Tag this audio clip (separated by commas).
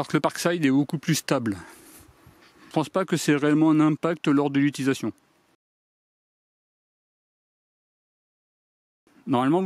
electric grinder grinding